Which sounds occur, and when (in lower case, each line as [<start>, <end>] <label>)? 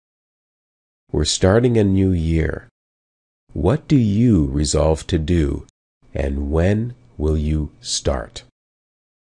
[1.06, 2.66] speech synthesizer
[1.07, 2.66] mechanisms
[3.45, 5.67] speech synthesizer
[3.48, 5.67] mechanisms
[6.02, 6.94] speech synthesizer
[6.02, 8.47] mechanisms
[7.14, 7.66] speech synthesizer
[7.77, 8.47] speech synthesizer